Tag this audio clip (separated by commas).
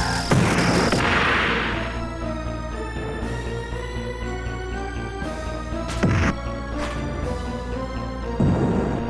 Music